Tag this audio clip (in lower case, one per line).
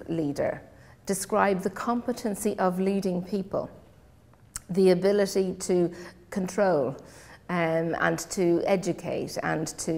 speech